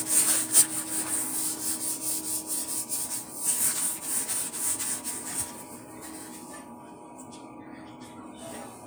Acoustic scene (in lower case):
kitchen